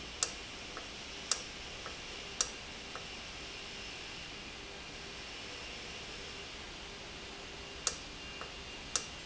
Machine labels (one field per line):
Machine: valve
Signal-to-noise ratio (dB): 0 dB